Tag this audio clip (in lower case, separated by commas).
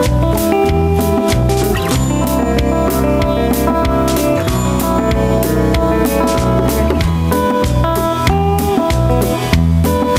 music